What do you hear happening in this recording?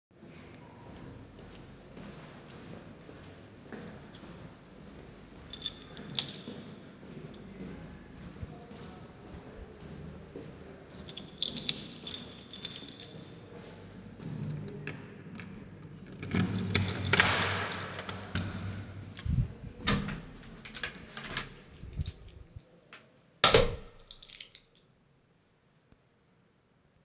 I was walking on the hallway and before arriving to my door I prepared my keychain to open my door, which I opened and closed.